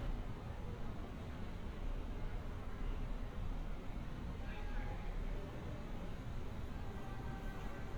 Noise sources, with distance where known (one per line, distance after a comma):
background noise